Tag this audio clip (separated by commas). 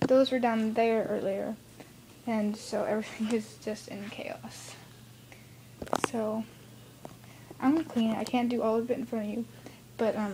Speech